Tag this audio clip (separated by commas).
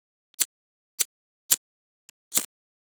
Fire